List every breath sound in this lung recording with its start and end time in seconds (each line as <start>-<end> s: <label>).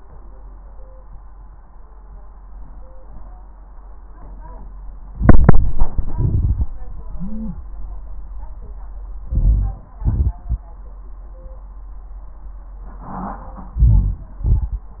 5.13-6.15 s: inhalation
5.14-6.13 s: crackles
6.15-7.67 s: exhalation
6.15-7.67 s: wheeze
6.15-7.67 s: crackles
9.19-9.94 s: crackles
9.23-9.98 s: inhalation
9.97-10.73 s: exhalation
9.97-10.73 s: crackles
13.71-14.42 s: crackles
13.75-14.46 s: inhalation
14.44-15.00 s: exhalation
14.44-15.00 s: crackles